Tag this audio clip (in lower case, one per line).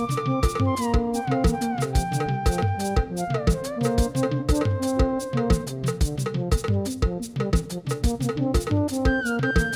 music